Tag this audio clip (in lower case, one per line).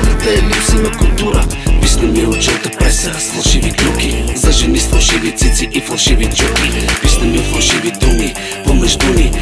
music
hip hop music
singing